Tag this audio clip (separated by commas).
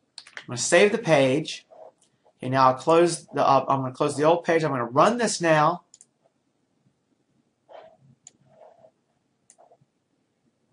Speech